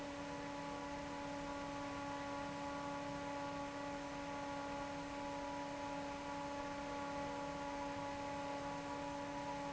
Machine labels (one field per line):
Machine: fan